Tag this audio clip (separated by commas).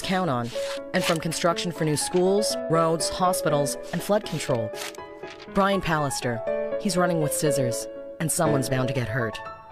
Speech, Music